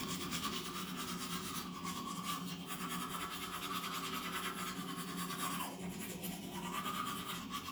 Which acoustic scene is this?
restroom